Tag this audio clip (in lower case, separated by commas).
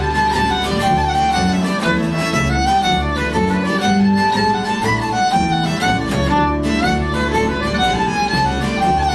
fiddle, music, musical instrument